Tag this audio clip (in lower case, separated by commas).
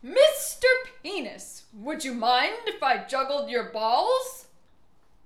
woman speaking, human voice, yell, shout, speech